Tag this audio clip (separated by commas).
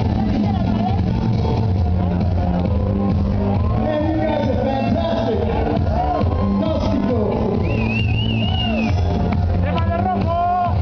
Speech, Music, Dance music